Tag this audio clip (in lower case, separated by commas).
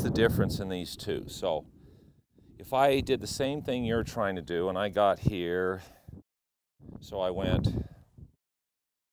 speech